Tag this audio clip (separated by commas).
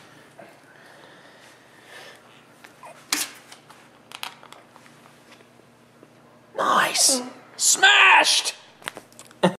Speech